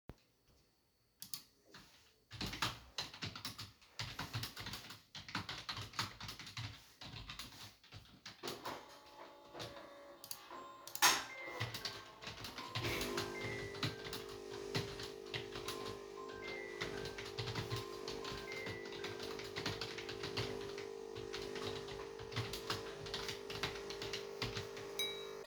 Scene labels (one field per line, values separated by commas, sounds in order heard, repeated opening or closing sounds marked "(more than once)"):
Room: bedroom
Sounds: keyboard typing, coffee machine, phone ringing, cutlery and dishes